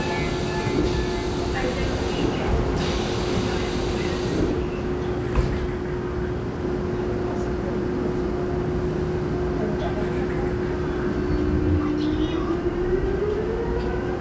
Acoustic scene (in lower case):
subway train